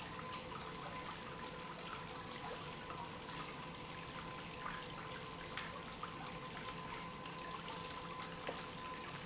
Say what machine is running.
pump